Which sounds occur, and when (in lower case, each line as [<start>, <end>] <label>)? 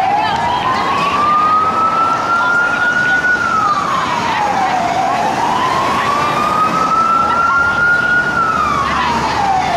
[0.00, 1.54] woman speaking
[0.00, 9.75] fire engine
[0.00, 9.75] roadway noise
[2.35, 3.20] woman speaking
[3.62, 4.82] woman speaking
[4.76, 6.85] woman speaking
[7.04, 7.87] woman speaking
[8.77, 9.75] woman speaking